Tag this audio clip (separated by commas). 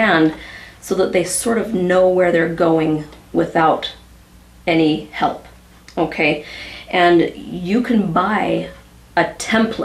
Speech